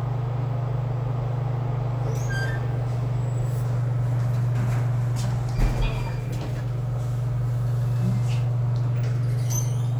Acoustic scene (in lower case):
elevator